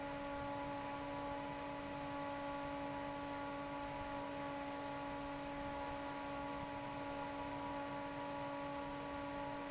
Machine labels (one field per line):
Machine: fan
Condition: normal